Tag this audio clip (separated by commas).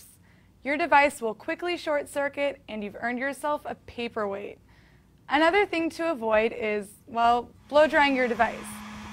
Speech